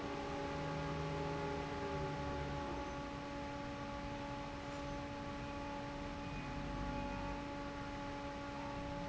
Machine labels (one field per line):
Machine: fan